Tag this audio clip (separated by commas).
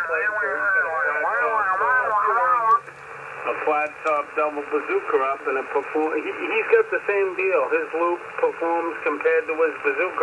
Speech, Radio